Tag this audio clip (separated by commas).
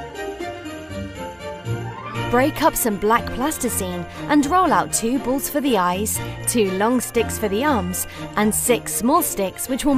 Music, Speech